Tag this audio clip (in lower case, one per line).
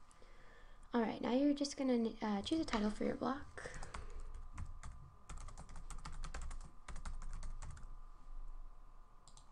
speech